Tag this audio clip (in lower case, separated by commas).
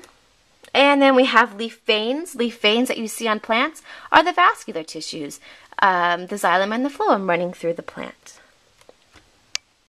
speech, inside a small room